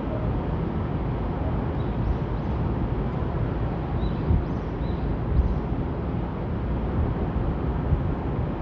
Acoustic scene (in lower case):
park